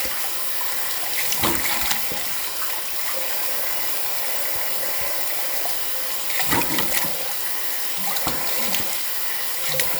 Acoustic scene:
restroom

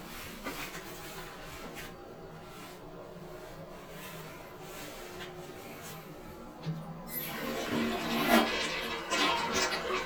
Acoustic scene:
restroom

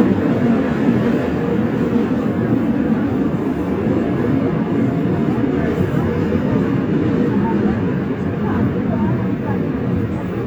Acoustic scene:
subway train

